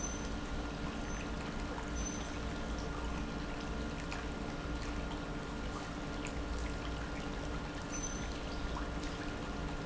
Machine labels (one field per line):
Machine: pump